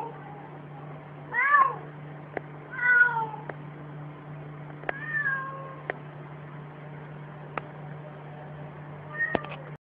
Some humming followed by a cat meowing